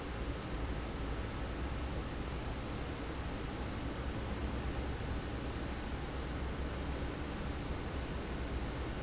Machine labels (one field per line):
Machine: fan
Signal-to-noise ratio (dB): -6 dB